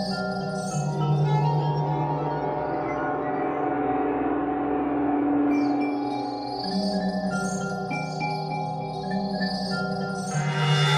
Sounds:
Video game music, Music

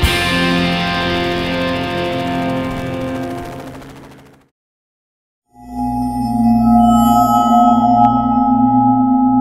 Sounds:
Music, Helicopter

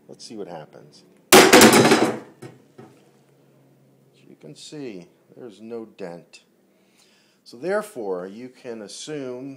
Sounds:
Hammer

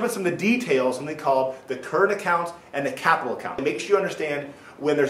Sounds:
Speech

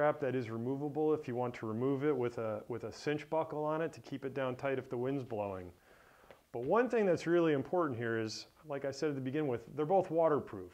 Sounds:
Speech

